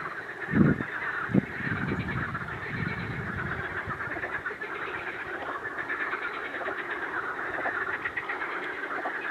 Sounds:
frog croaking

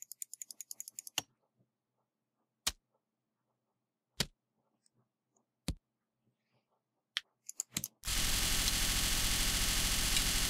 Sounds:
mouse clicking

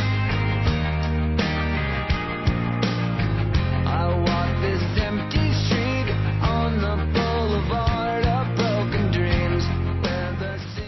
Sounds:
music

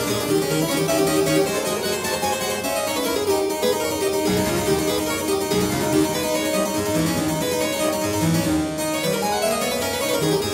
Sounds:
playing harpsichord

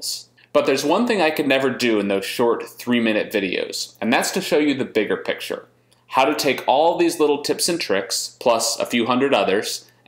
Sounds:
speech

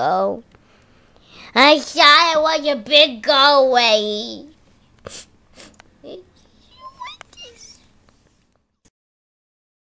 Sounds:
speech, inside a small room

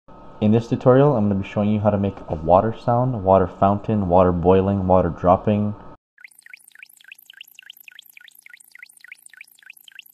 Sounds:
speech

